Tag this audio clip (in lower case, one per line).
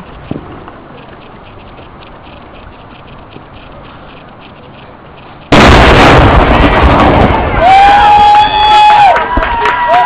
speech
explosion
outside, rural or natural